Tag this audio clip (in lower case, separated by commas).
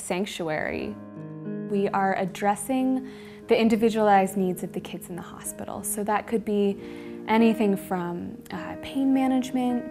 music, speech